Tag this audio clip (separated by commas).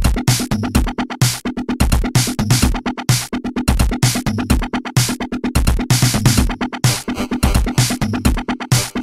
Drum machine, Bass drum, Drum, Music